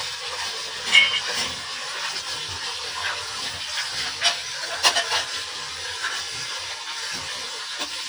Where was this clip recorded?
in a kitchen